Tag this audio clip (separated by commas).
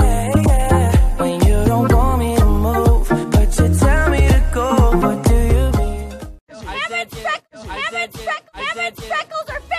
Music, Speech